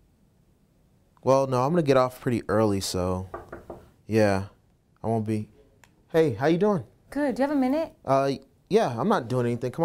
Man speaking then woman knocks and speaks to man who then responds